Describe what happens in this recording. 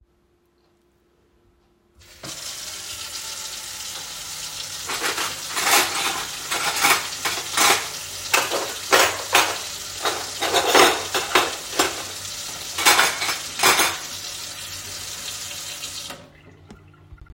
I turned on the water in the kitchen and started handling cutlery in the sink. The water kept running while I moved the cutlery.